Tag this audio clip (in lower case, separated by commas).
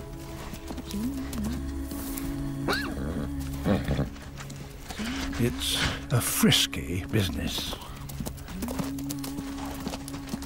animal, horse, outside, rural or natural, music, speech